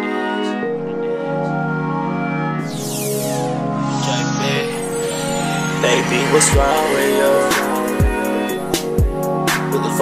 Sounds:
music

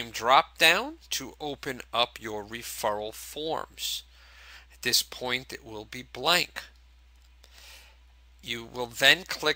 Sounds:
speech

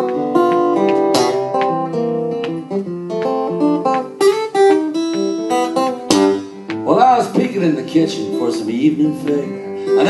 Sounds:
guitar
music
musical instrument
speech

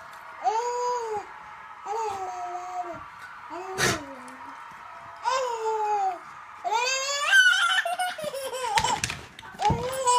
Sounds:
baby laughter

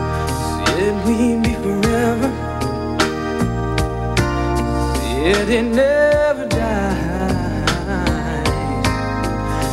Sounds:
music

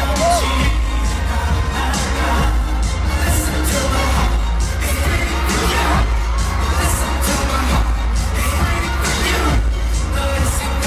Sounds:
music

